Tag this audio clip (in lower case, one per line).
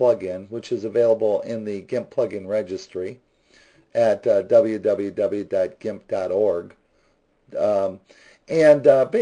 speech